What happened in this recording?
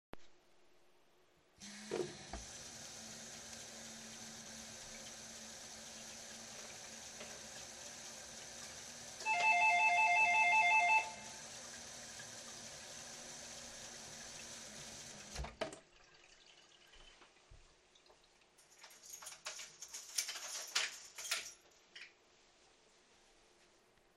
I had the water running into the kitchen sink to get warm. While it was still running, the doorbell rang. I walked to the sink and turned off the water. Then I walked to the door and turned the key that was already in the keyhole.